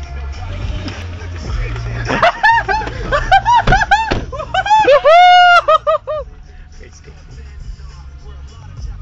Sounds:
door
speech
music
vehicle
car

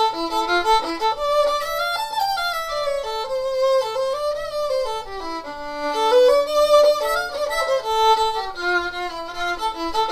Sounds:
fiddle
music
musical instrument

